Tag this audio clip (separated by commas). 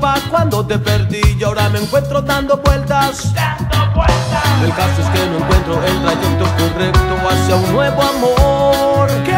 Music